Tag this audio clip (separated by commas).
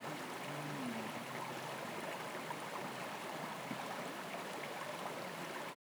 Stream, Water